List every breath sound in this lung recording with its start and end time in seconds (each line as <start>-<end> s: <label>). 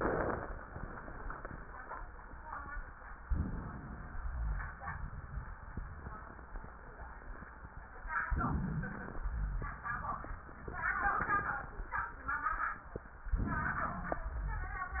3.25-4.18 s: inhalation
4.20-4.75 s: rhonchi
4.22-6.78 s: exhalation
8.33-9.26 s: inhalation
9.22-9.82 s: rhonchi
9.26-11.92 s: exhalation
13.37-14.29 s: inhalation
13.79-14.22 s: wheeze